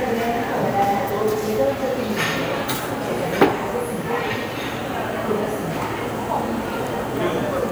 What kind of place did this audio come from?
cafe